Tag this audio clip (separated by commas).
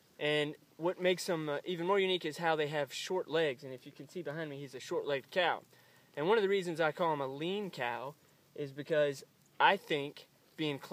Speech